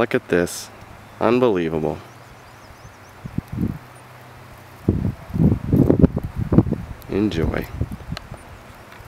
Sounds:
Speech, outside, rural or natural

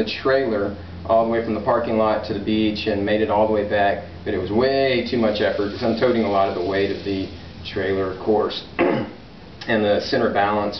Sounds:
Speech

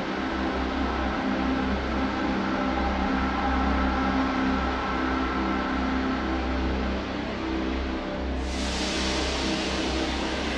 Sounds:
Music

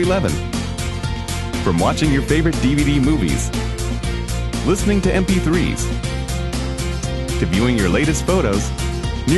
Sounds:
Music, Speech

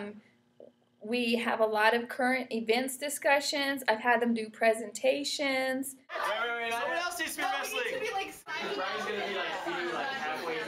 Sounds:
Speech

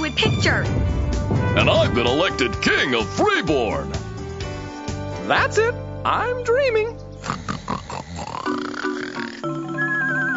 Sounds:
Speech, outside, rural or natural, Music

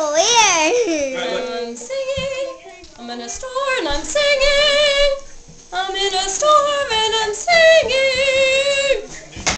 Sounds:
Speech, Female singing

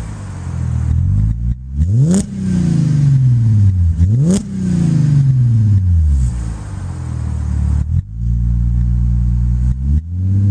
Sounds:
Car passing by

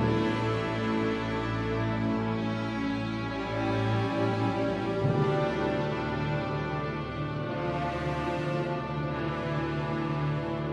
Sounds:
Music

